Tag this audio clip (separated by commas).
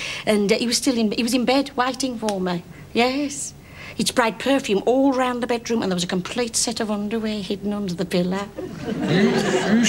Speech